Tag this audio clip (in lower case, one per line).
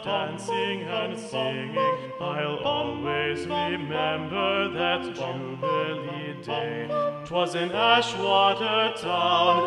music
choir